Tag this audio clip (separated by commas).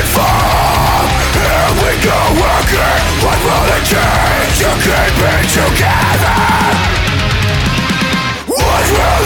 Music, Guitar, Strum, Musical instrument, Electric guitar, Acoustic guitar, Plucked string instrument, Bass guitar